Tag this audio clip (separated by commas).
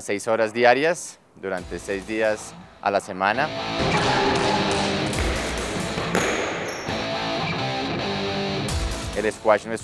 playing squash